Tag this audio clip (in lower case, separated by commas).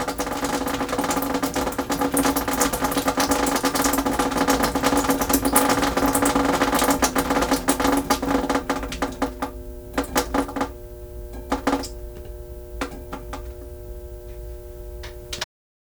liquid, drip